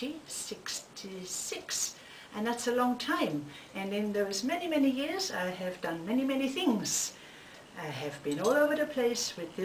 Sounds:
Speech

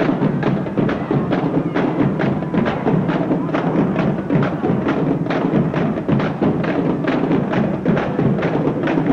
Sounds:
Music

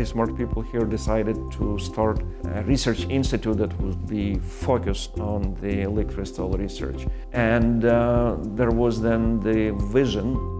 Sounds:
Speech, Music

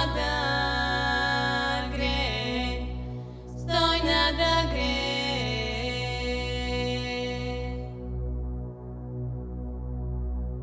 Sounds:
Music

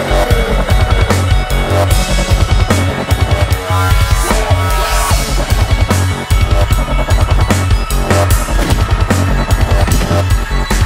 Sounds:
Music

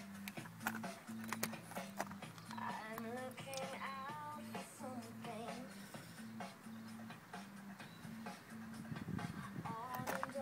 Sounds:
Music

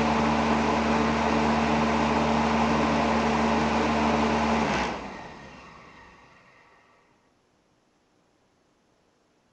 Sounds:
inside a small room, Mechanical fan

